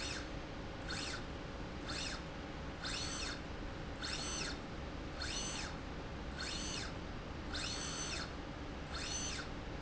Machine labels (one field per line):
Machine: slide rail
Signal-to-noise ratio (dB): 0 dB